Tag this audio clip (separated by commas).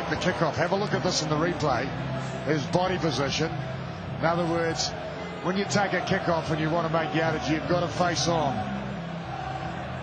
Speech